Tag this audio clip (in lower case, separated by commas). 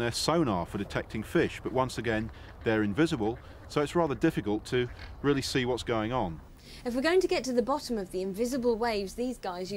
speech